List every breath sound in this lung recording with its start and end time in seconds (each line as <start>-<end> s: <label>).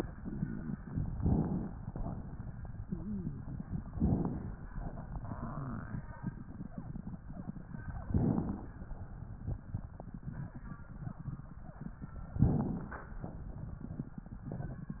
1.16-1.75 s: inhalation
1.84-2.56 s: exhalation
2.79-3.38 s: wheeze
3.95-4.54 s: inhalation
4.72-6.04 s: exhalation
8.08-8.75 s: inhalation
12.41-13.07 s: inhalation